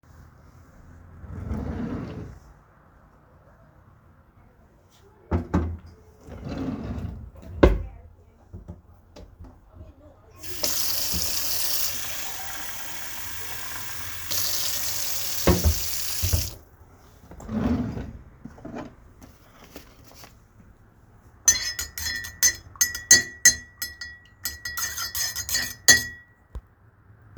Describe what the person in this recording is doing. I came from extercise 5o kitchen and open the wardrobe to bring a cup and pour some water into cup and put some electrilite powder and stiring.